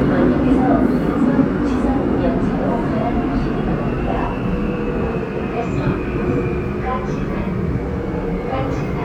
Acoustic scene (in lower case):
subway train